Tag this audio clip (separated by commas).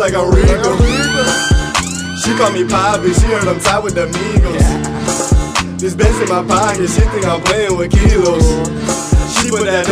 Music, Independent music